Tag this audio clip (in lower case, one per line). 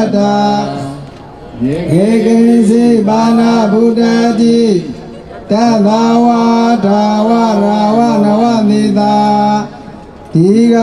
mantra
speech